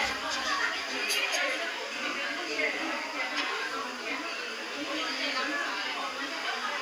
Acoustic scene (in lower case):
restaurant